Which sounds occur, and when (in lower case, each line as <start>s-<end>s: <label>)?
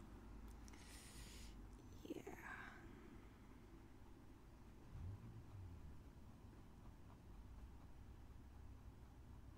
0.0s-9.5s: background noise
0.4s-0.8s: human sounds
0.7s-1.5s: breathing
1.6s-1.8s: human sounds
1.8s-2.8s: female speech